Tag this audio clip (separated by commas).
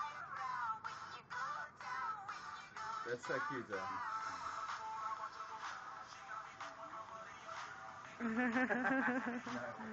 Speech, Music